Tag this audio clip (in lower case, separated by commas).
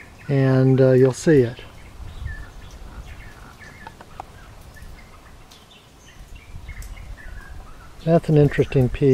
speech